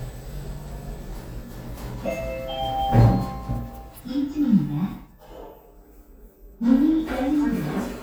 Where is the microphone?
in an elevator